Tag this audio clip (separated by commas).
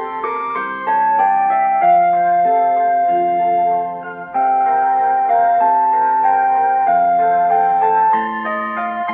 Piano, Electric piano, Keyboard (musical)